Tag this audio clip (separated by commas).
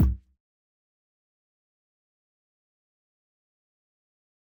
Percussion, Music, thud, Bass drum, Musical instrument, Drum